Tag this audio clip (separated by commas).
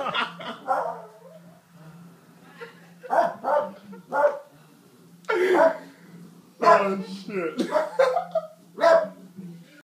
dog bow-wow, Bow-wow, Dog, pets, Animal, Speech